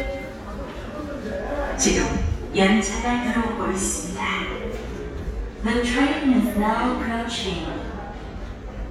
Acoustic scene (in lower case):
subway station